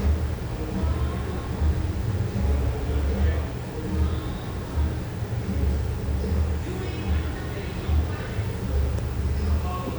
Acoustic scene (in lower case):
cafe